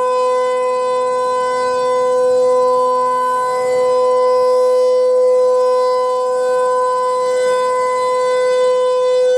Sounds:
civil defense siren
siren

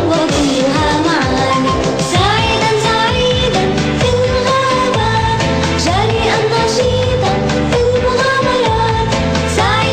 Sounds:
soundtrack music
music

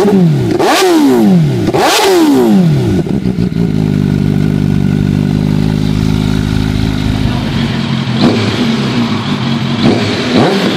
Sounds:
driving motorcycle
motorcycle
vehicle

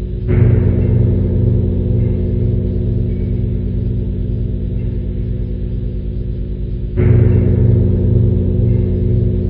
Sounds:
bell

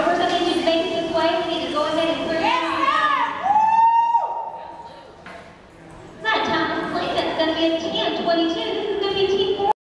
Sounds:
speech

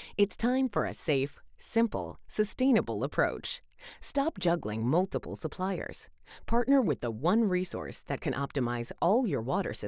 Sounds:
speech

